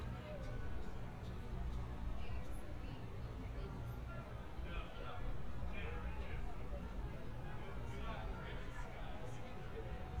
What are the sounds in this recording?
person or small group talking